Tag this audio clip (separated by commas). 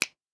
Finger snapping, Hands